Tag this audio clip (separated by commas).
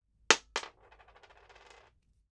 Coin (dropping), home sounds